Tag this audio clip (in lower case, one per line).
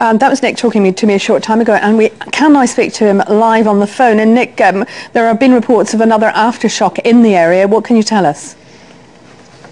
speech